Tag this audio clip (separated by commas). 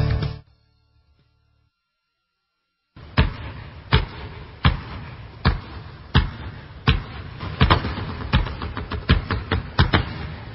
Basketball bounce